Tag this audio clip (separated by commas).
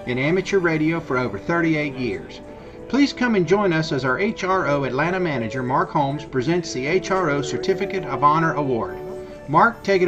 Speech, Music